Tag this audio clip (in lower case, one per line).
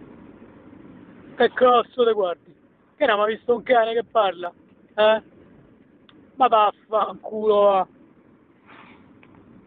speech